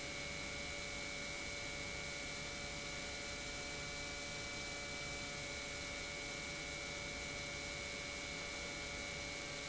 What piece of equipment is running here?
pump